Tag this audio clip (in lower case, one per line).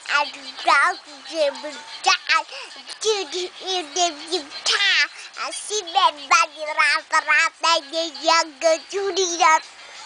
music
child singing